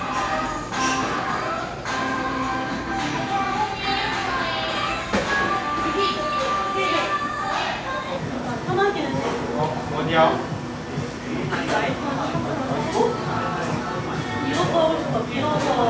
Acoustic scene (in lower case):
cafe